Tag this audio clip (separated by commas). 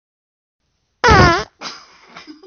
Fart